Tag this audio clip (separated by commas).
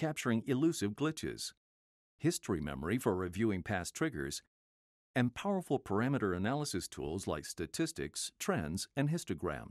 Speech